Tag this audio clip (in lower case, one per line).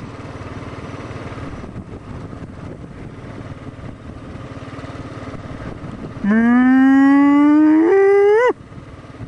gurgling